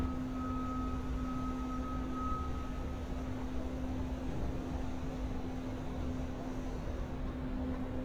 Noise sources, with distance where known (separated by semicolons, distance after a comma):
reverse beeper